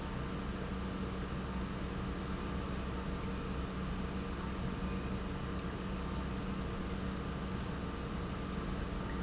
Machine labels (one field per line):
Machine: pump